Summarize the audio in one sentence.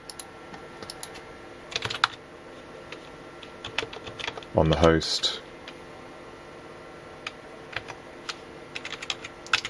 Typing on a keyboard is occurring, and an adult male speaks briefly